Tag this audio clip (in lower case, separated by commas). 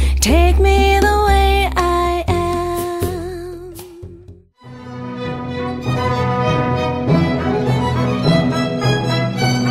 music, tender music